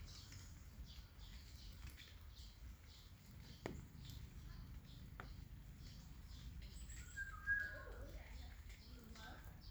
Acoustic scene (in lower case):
park